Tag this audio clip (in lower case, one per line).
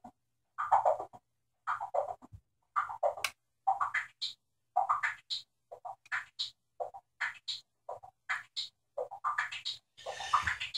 effects unit
synthesizer